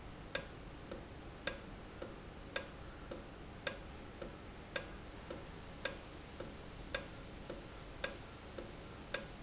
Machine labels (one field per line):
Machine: valve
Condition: normal